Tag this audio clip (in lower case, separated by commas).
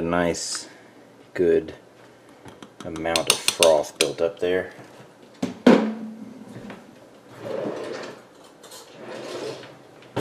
eating with cutlery, silverware, dishes, pots and pans